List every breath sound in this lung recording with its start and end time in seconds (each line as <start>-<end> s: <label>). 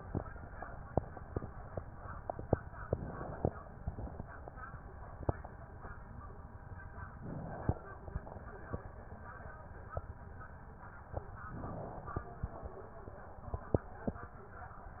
2.73-3.76 s: inhalation
2.73-3.76 s: crackles
3.75-4.31 s: exhalation
3.79-4.31 s: crackles
7.16-8.09 s: inhalation
7.16-8.09 s: crackles
11.38-12.31 s: inhalation
11.38-12.31 s: crackles